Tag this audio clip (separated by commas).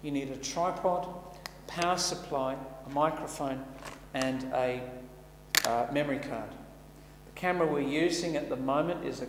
Speech